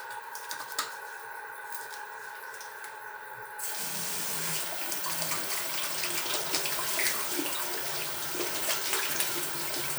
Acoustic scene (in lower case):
restroom